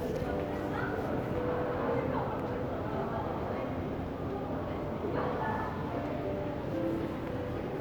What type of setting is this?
crowded indoor space